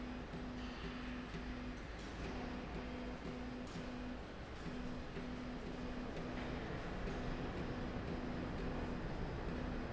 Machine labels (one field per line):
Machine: slide rail